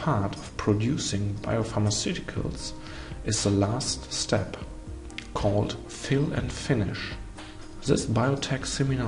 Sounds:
music, speech

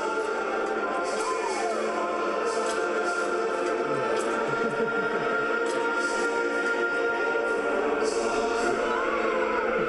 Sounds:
music

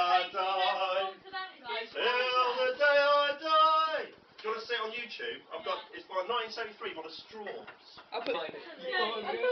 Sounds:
male singing, speech

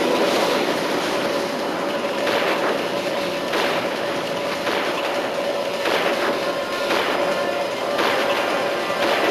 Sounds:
music

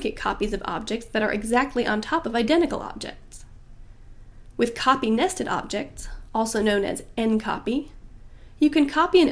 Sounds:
speech

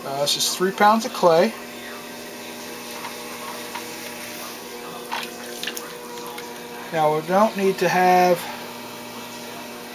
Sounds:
electric razor, speech

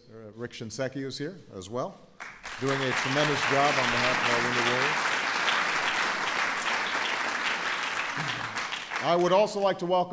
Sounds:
speech

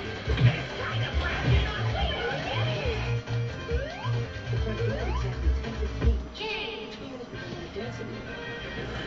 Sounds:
speech

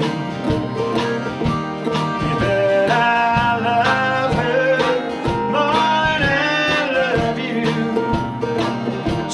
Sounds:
country, music

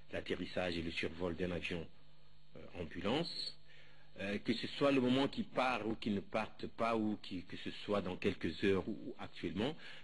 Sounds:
speech

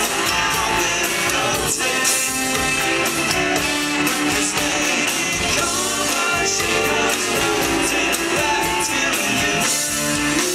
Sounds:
pop music, music

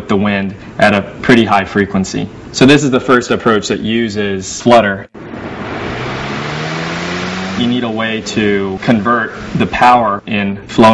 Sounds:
speech

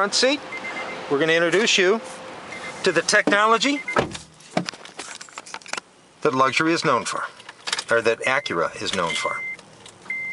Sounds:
car, vehicle, speech

